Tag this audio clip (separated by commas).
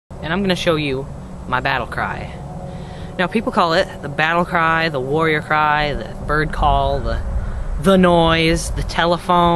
people battle cry